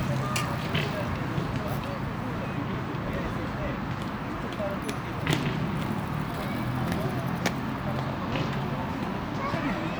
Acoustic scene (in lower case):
residential area